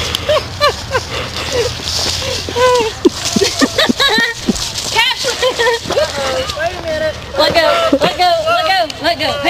Different people are talking and laughing as they play with a whimpering dog